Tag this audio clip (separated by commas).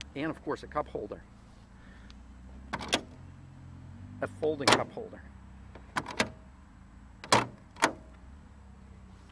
Speech, Vehicle